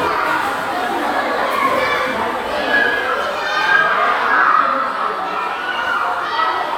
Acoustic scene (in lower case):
crowded indoor space